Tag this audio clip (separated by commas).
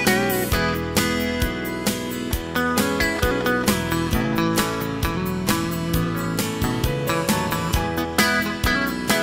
Music